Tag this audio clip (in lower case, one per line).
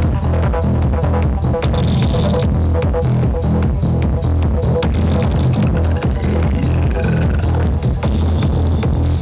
house music
electronic music
music
trance music